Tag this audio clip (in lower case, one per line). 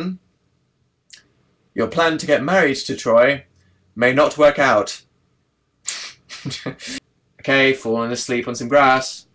speech